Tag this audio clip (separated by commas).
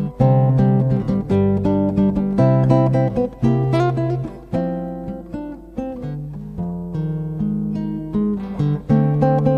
Plucked string instrument, Music, Musical instrument, Guitar